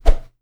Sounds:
swoosh

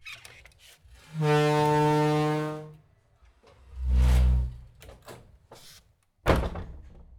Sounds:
door
domestic sounds
slam

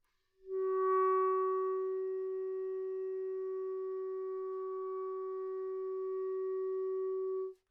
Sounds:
music
woodwind instrument
musical instrument

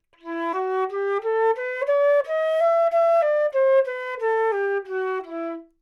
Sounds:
woodwind instrument
music
musical instrument

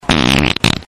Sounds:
fart

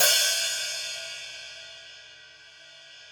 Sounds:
percussion
musical instrument
hi-hat
cymbal
music

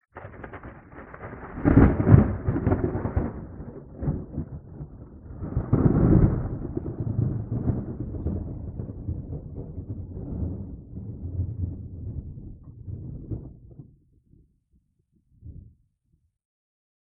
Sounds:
thunder
thunderstorm

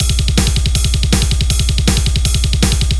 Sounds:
drum kit
music
percussion
musical instrument

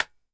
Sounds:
hands
clapping

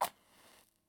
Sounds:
fire

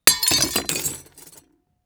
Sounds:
glass
shatter

